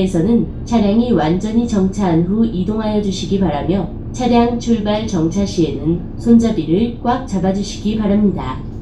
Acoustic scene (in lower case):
bus